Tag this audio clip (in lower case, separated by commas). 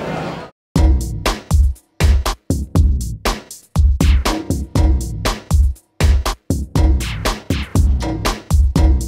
speech, music